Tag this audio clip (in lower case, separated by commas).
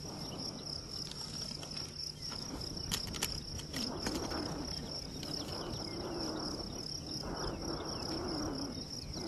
outside, rural or natural